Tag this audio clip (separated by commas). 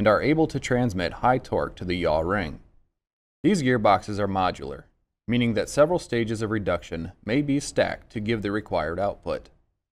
Speech